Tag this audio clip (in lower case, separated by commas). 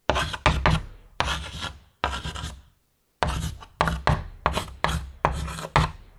home sounds, writing